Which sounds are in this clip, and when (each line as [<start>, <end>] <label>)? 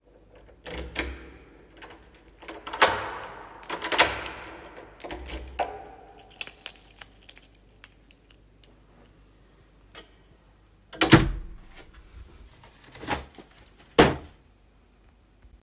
[3.51, 7.96] keys
[10.89, 11.64] door